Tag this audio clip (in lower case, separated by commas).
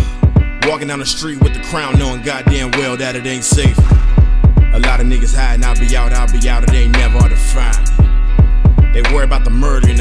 music